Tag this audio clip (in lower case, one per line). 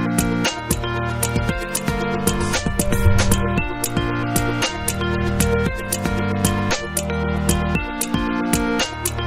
music